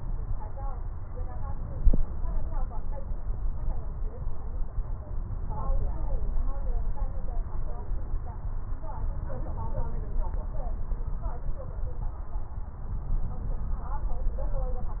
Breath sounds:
No breath sounds were labelled in this clip.

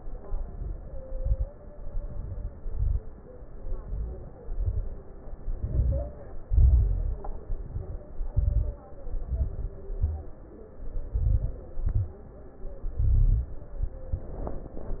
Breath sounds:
0.00-0.91 s: inhalation
0.00-0.91 s: crackles
0.93-1.52 s: exhalation
0.93-1.52 s: crackles
1.71-2.50 s: inhalation
1.71-2.50 s: crackles
2.58-3.19 s: exhalation
2.58-3.19 s: crackles
3.52-4.29 s: inhalation
3.52-4.29 s: crackles
4.39-5.05 s: exhalation
4.39-5.05 s: crackles
5.45-6.25 s: inhalation
5.45-6.25 s: crackles
6.48-7.20 s: exhalation
6.48-7.20 s: crackles
7.37-8.09 s: inhalation
7.37-8.09 s: crackles
8.13-8.85 s: exhalation
8.13-8.85 s: crackles
8.87-9.75 s: inhalation
8.87-9.75 s: crackles
9.84-10.53 s: exhalation
9.84-10.53 s: crackles
10.78-11.61 s: inhalation
10.78-11.61 s: crackles
11.74-12.35 s: exhalation
11.74-12.35 s: crackles
12.98-13.59 s: inhalation
12.98-13.59 s: crackles

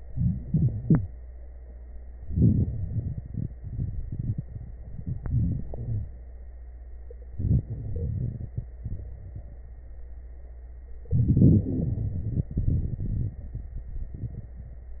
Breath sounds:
2.20-2.76 s: inhalation
2.77-4.81 s: exhalation
4.85-5.66 s: inhalation
4.85-5.66 s: crackles
5.66-6.12 s: exhalation
5.66-6.12 s: wheeze
7.29-7.68 s: inhalation
7.66-9.64 s: exhalation
11.12-11.67 s: inhalation
11.12-11.67 s: crackles
11.64-12.59 s: wheeze
11.64-15.00 s: exhalation

